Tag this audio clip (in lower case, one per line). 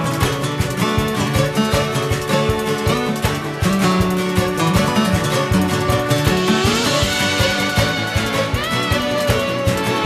music